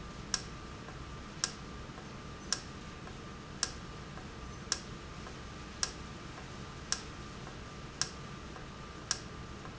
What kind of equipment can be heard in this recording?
valve